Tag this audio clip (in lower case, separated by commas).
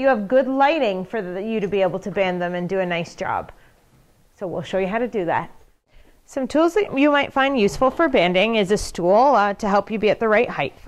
speech